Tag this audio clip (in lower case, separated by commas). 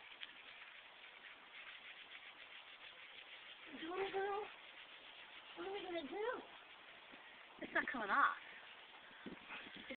speech